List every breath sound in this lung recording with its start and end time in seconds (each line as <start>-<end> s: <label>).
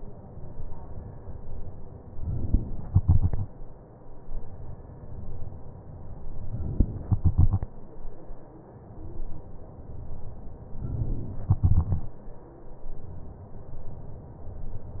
2.23-2.87 s: inhalation
2.87-4.07 s: exhalation
7.06-8.26 s: exhalation
10.85-11.52 s: inhalation
11.52-12.86 s: exhalation